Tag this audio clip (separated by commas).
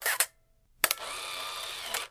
Camera, Mechanisms